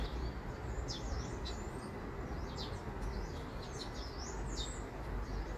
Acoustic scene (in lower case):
park